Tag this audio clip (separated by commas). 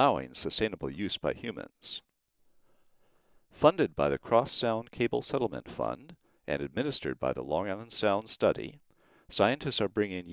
Speech